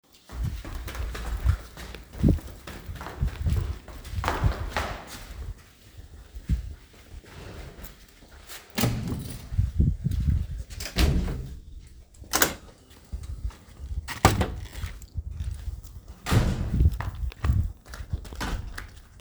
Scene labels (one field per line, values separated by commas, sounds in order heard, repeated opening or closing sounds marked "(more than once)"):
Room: hallway, staircase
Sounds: footsteps, door (more than once), keys